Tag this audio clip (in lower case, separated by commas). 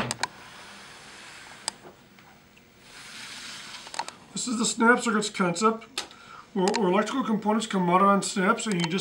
speech, scratch